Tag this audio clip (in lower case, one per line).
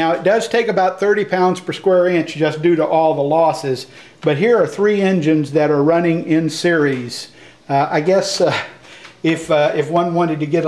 speech